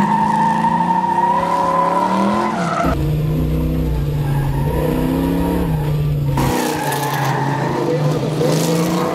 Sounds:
car, race car, engine, car passing by, vehicle

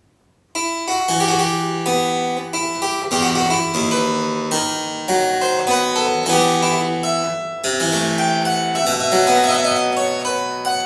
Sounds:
playing harpsichord

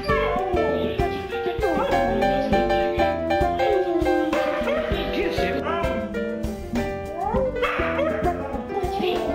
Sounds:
bow-wow, dog, pets, speech, music, animal

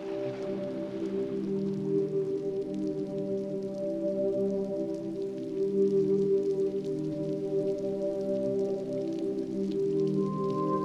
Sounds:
music

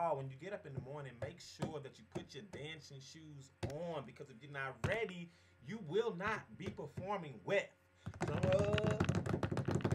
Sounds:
speech

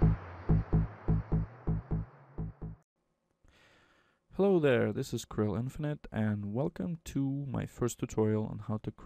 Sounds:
speech

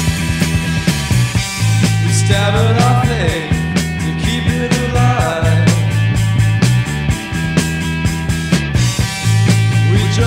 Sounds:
music

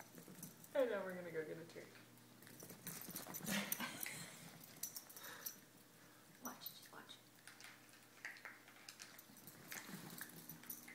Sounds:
animal, speech

